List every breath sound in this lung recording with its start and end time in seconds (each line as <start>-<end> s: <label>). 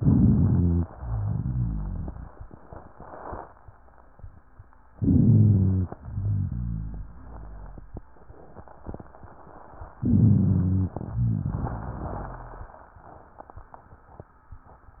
0.87-3.46 s: exhalation
0.96-2.13 s: rhonchi
4.96-5.92 s: inhalation
4.99-5.87 s: rhonchi
6.01-8.03 s: exhalation
6.13-8.04 s: rhonchi
9.99-10.96 s: inhalation
9.99-10.91 s: rhonchi
10.97-13.02 s: exhalation
11.10-12.69 s: rhonchi